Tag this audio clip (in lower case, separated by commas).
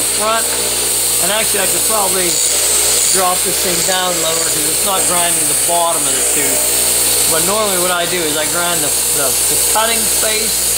speech